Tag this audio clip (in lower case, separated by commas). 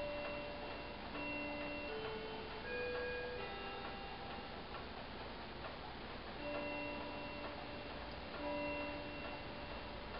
tick, tick-tock